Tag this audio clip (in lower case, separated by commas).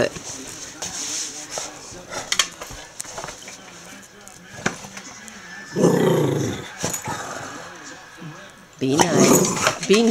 animal, speech